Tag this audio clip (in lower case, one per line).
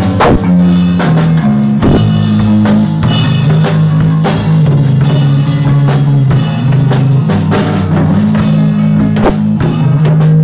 music